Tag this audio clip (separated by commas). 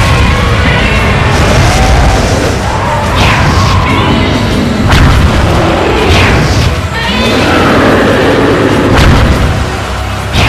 Clatter, Music